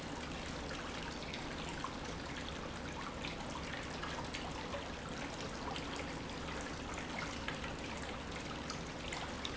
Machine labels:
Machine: pump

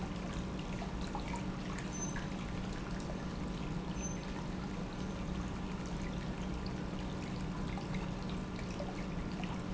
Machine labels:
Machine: pump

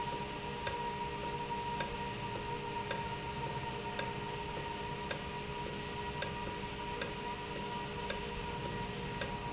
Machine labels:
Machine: valve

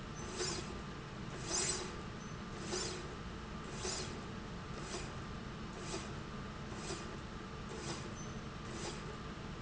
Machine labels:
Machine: slide rail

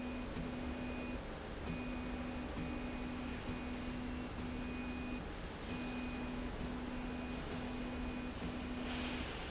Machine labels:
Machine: slide rail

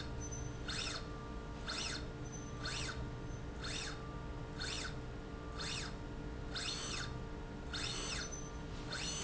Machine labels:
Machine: slide rail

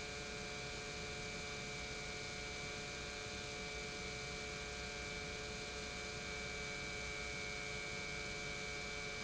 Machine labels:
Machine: pump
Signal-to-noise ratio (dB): 6 dB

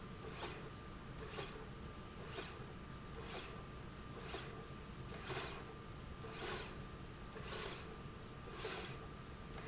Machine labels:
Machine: slide rail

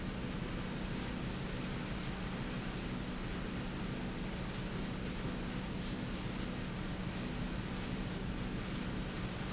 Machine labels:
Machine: slide rail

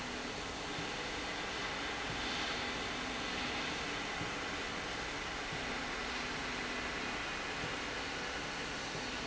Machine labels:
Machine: slide rail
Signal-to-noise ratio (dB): -6 dB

